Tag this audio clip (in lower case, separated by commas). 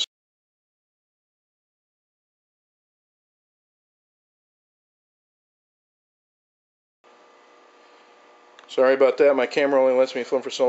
speech